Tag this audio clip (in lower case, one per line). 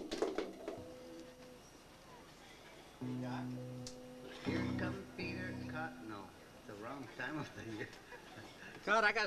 music
speech